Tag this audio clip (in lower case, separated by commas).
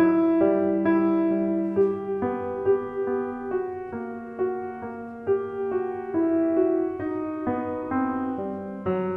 music, musical instrument